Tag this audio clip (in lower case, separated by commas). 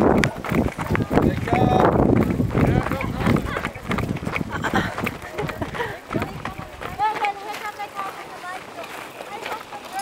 speech, run